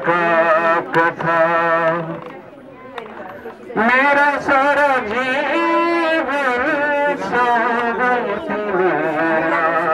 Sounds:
speech, music, male singing

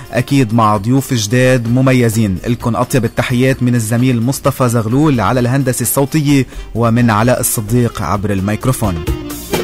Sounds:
music, speech

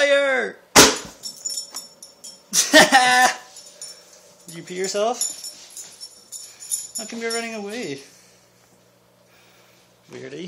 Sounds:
speech

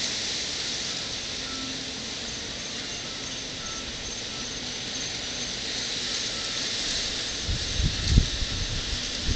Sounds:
music

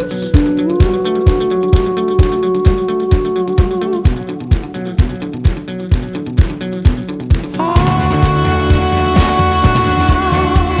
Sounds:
rimshot, bass drum, percussion, snare drum, drum, drum kit

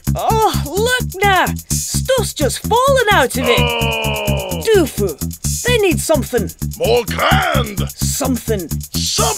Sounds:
speech, music, soundtrack music

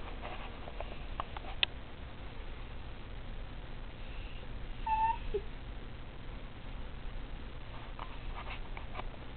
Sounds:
pets, animal, dog, whimper (dog)

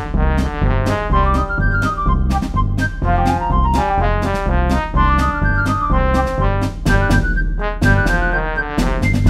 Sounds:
music

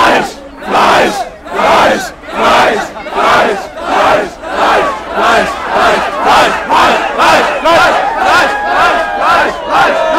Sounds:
speech

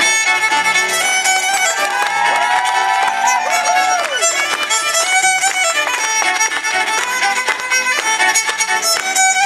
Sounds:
music, fiddle, musical instrument

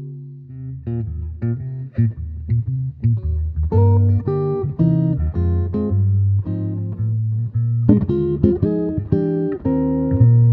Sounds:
guitar, music, acoustic guitar, strum, plucked string instrument, musical instrument

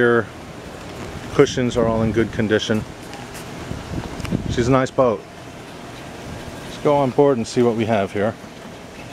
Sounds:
speech, boat, vehicle

